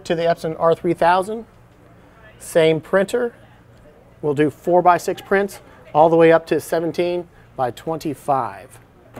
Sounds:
speech

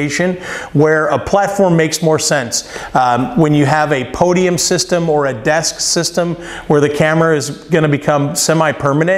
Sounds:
speech

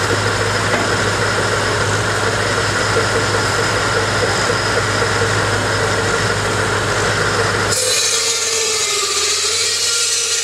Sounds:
vehicle
engine

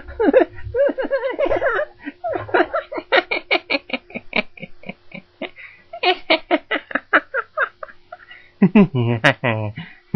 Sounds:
laughter

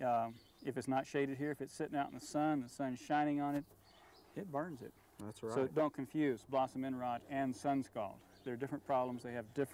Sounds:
speech

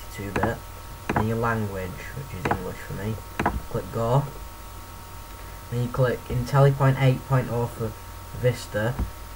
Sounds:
speech

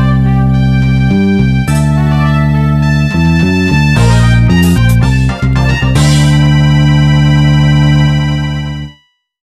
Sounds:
music

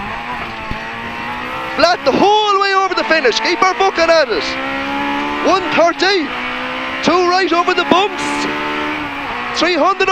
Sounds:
vehicle
car

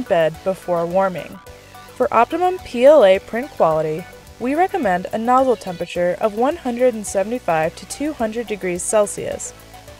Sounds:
speech
music

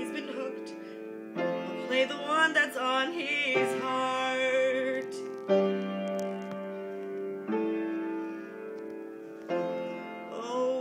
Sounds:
female singing
music

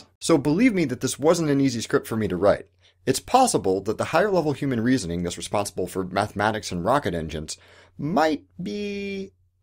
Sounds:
narration
speech

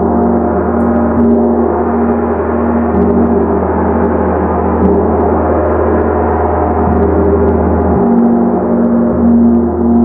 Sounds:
playing gong

